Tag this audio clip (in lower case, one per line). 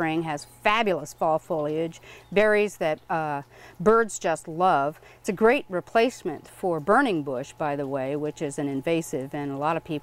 speech